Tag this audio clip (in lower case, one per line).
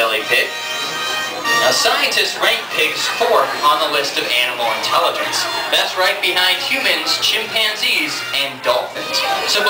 music
speech